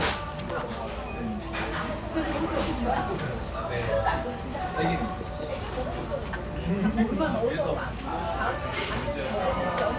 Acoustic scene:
cafe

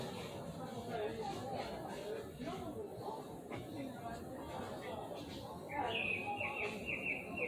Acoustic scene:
park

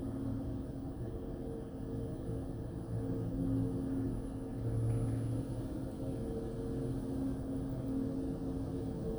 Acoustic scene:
elevator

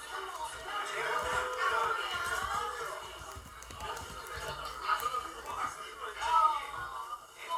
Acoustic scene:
crowded indoor space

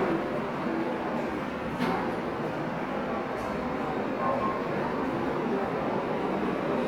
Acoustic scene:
subway station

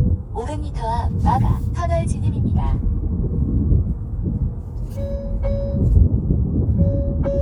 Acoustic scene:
car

